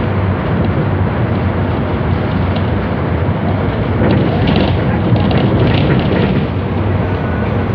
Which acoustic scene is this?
bus